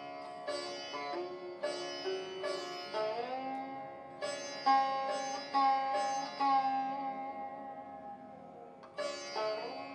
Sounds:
music, sitar

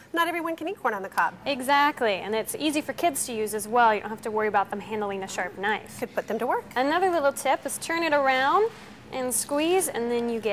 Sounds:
speech

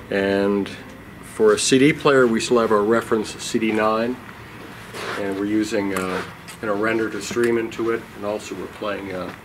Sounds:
speech

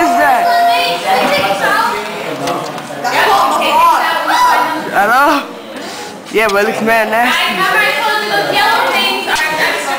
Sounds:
speech

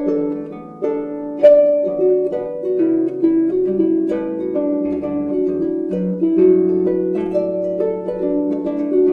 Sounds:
playing harp

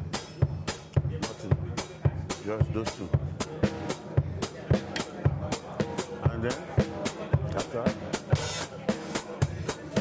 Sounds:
music, speech

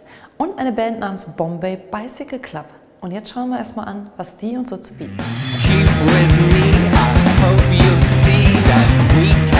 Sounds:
speech, music

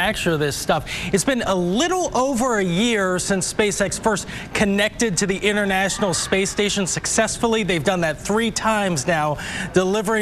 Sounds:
speech

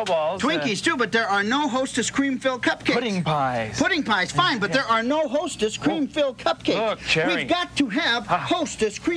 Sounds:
speech

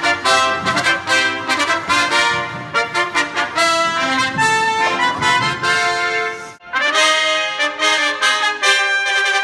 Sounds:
happy music, music

